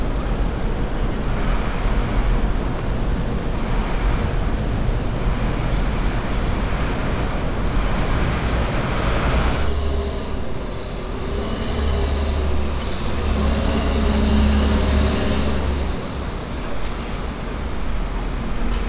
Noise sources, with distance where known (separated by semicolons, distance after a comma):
large-sounding engine, near